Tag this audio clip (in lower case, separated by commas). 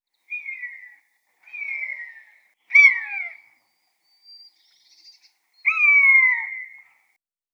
bird, animal, wild animals